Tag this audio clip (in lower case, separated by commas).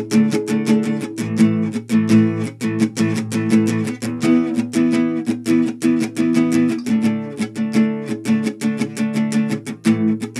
music, musical instrument, plucked string instrument, guitar, acoustic guitar